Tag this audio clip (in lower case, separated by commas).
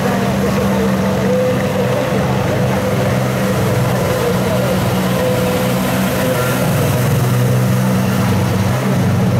waterfall, speech